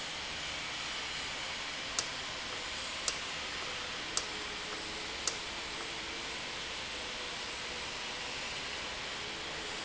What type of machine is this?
valve